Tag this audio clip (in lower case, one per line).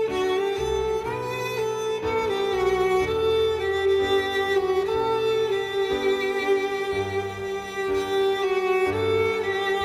fiddle
music